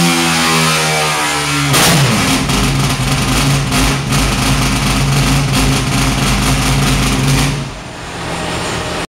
A loud powerful engine idling and rumbling